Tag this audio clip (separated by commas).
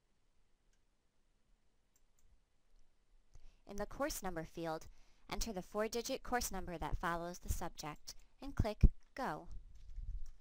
Speech, Silence